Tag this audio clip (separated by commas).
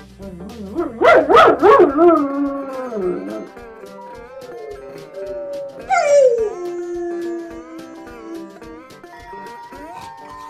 dog howling